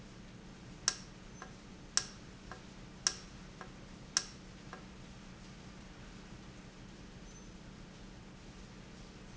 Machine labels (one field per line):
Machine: valve